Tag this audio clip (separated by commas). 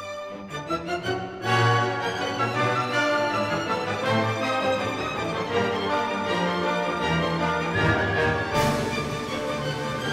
Music